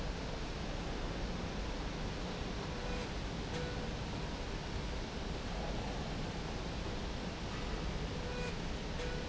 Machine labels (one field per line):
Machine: slide rail